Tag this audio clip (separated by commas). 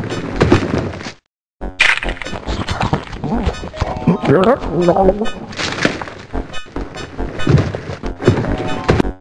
Music